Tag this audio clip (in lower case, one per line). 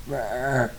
burping